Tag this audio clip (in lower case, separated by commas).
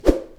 swish